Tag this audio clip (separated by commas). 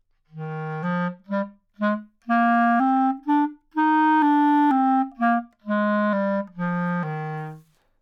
Musical instrument, woodwind instrument, Music